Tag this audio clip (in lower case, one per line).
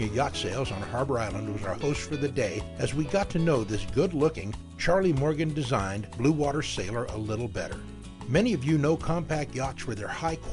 music
speech